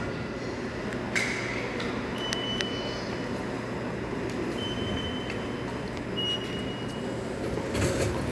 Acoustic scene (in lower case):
subway station